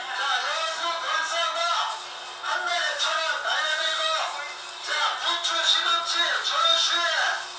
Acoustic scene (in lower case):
crowded indoor space